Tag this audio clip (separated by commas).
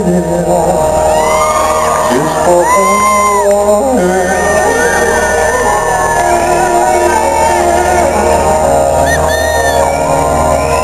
Music, Male singing